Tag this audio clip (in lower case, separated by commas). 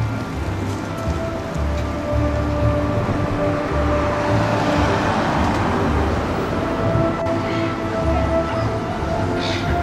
outside, urban or man-made, music